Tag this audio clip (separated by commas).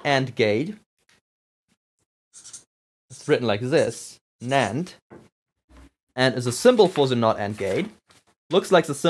Speech, inside a small room